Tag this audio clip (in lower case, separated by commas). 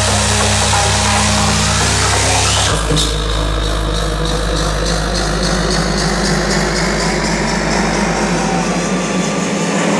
electronic music, music